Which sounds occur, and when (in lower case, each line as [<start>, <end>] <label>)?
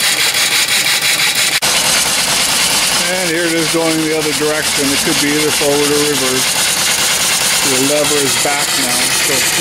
[0.01, 9.60] engine
[3.04, 6.49] man speaking
[7.61, 9.60] man speaking